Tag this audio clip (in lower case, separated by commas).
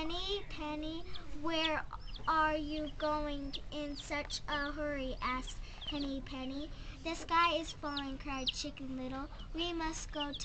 speech